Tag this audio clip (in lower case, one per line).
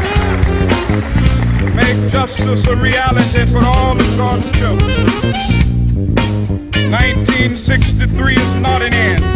music
speech